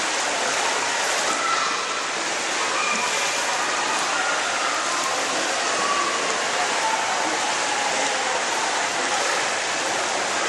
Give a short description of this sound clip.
Water rushes and childlike shouts can be heard